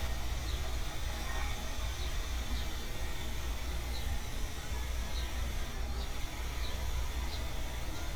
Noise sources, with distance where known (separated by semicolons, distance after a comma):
person or small group talking, far